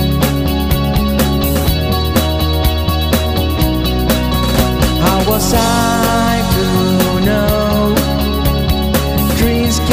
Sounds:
music

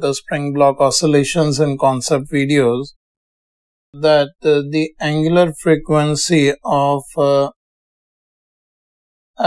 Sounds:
speech

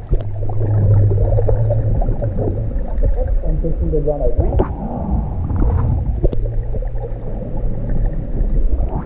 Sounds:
swimming

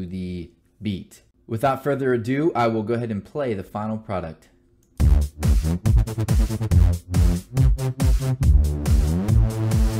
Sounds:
music
speech

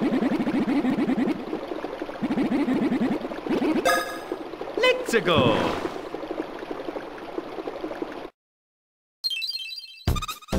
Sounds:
speech

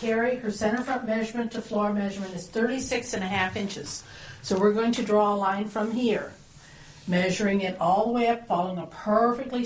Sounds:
speech

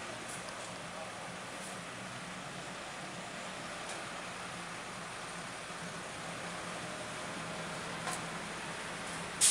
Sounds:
vehicle

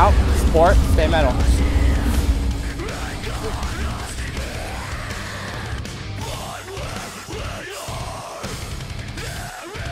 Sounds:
speech
musical instrument
music
guitar

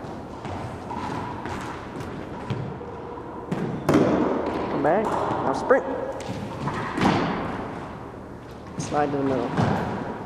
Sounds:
speech

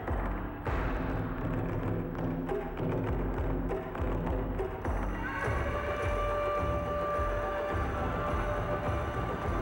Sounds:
music
timpani

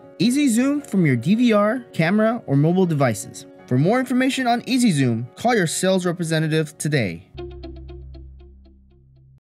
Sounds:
speech
music

